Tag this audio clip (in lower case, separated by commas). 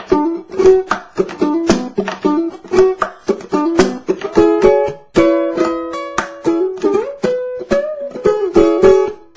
ukulele, music, inside a small room